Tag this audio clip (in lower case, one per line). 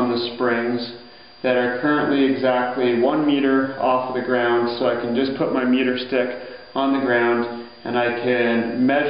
speech